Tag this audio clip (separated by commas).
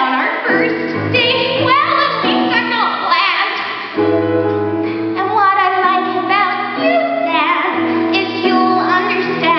Music, Female singing